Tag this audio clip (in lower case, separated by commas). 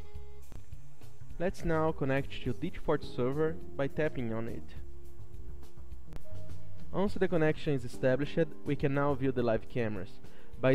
speech, music